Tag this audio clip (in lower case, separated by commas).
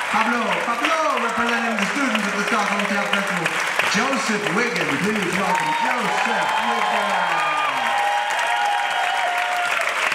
speech